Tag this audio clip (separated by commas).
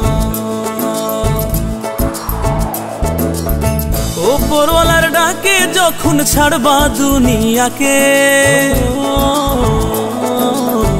Music